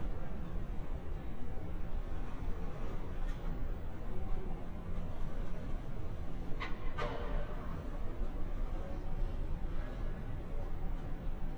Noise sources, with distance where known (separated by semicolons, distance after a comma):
background noise